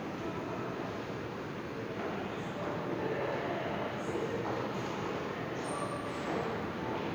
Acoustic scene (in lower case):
subway station